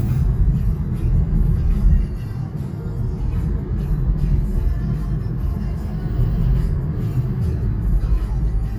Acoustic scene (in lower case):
car